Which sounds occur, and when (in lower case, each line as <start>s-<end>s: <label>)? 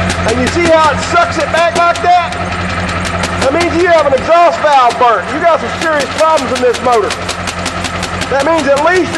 0.0s-9.1s: medium engine (mid frequency)
0.0s-0.1s: paper rustling
0.2s-2.3s: male speech
0.2s-0.3s: paper rustling
0.4s-0.5s: paper rustling
0.6s-0.7s: paper rustling
0.8s-0.8s: paper rustling
1.3s-1.4s: paper rustling
1.7s-1.8s: paper rustling
1.9s-1.9s: paper rustling
2.3s-2.3s: paper rustling
2.8s-2.9s: paper rustling
3.0s-3.0s: paper rustling
3.2s-3.2s: paper rustling
3.4s-3.4s: paper rustling
3.4s-5.2s: male speech
3.6s-3.6s: paper rustling
3.7s-3.8s: paper rustling
4.0s-4.0s: paper rustling
4.1s-4.2s: paper rustling
4.7s-4.7s: paper rustling
4.8s-4.9s: paper rustling
5.3s-7.1s: male speech
5.8s-5.8s: paper rustling
6.0s-6.0s: paper rustling
6.2s-6.2s: paper rustling
6.3s-6.4s: paper rustling
6.5s-6.6s: paper rustling
6.7s-6.8s: paper rustling
6.9s-7.0s: paper rustling
7.1s-7.1s: paper rustling
7.2s-7.3s: paper rustling
7.4s-7.5s: paper rustling
7.6s-7.7s: paper rustling
7.8s-7.9s: paper rustling
8.0s-8.1s: paper rustling
8.2s-8.3s: paper rustling
8.2s-9.1s: male speech
8.4s-8.4s: paper rustling
8.5s-8.6s: paper rustling
8.7s-8.8s: paper rustling
8.9s-9.0s: paper rustling
9.1s-9.1s: paper rustling